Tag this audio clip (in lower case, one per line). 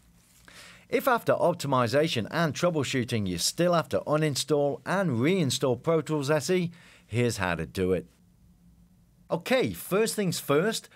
speech